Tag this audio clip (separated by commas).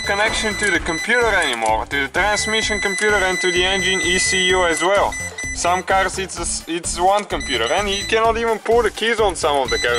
reversing beeps